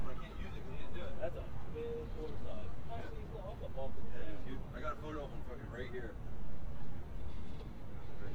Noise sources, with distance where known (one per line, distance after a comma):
person or small group talking, near